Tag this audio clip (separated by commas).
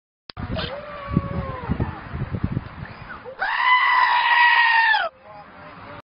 Goat, Speech, Animal